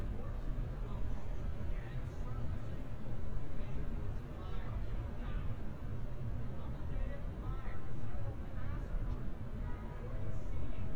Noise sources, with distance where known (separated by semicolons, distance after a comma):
person or small group talking